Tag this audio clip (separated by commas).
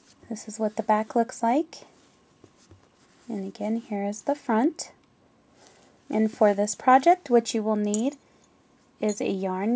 Speech